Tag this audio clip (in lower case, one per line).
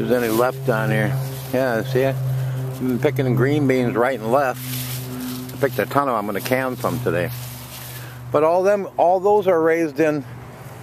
speech